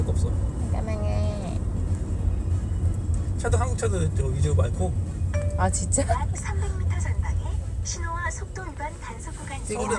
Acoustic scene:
car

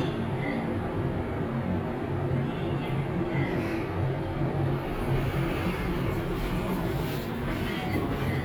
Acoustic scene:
elevator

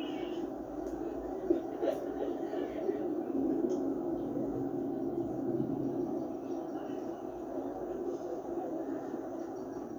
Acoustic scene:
park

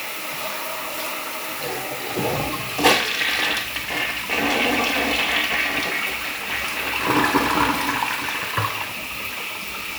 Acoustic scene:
restroom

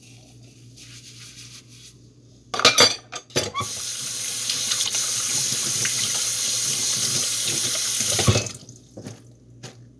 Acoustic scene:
kitchen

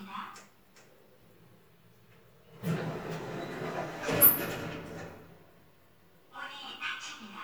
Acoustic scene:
elevator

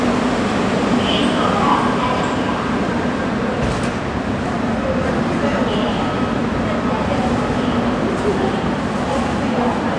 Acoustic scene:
subway station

